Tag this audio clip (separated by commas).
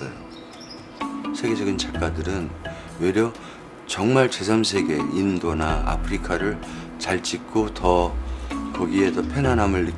Music, Speech